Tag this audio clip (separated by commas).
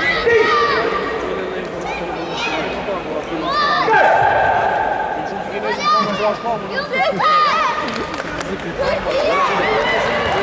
Speech